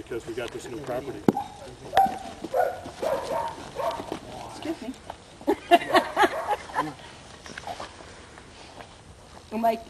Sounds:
speech

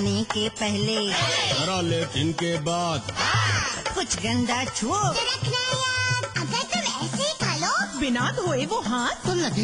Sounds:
music
speech

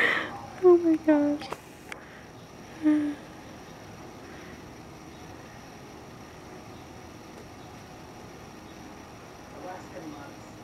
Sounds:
speech

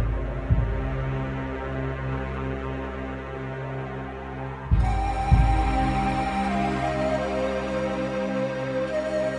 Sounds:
music

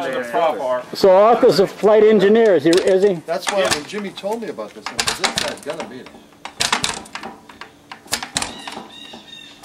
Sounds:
speech

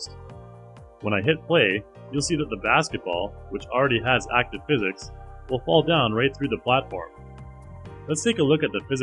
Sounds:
speech
music

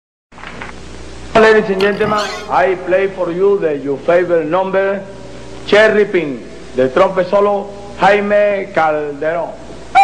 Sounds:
livestock
animal
pig
speech
monologue

